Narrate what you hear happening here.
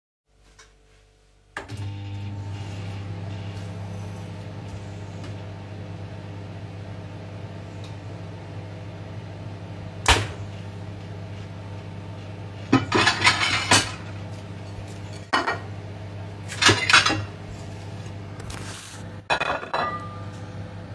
I started the microwave, then in the meantime opened a drawer and prepared dishes.